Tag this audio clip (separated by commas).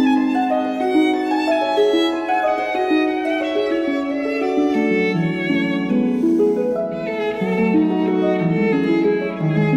fiddle, Music, Musical instrument, Pizzicato